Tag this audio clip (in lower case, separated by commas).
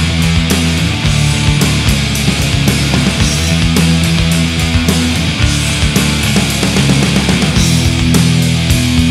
music